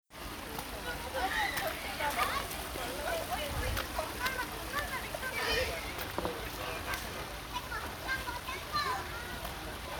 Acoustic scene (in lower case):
park